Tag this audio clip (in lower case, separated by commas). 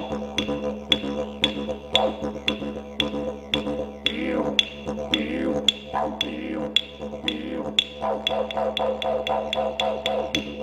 playing didgeridoo